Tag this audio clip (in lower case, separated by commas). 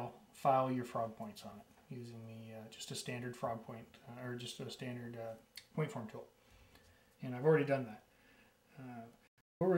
speech